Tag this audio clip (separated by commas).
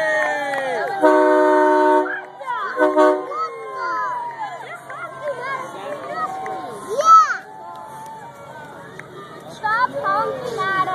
Speech